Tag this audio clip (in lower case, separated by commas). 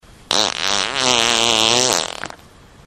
fart